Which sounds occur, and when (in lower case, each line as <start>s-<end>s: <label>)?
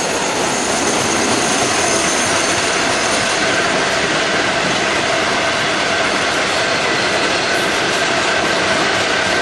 0.0s-9.4s: train wagon